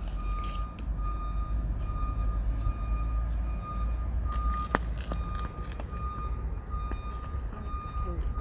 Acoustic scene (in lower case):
residential area